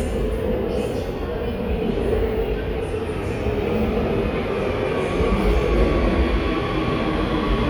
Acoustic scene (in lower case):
subway station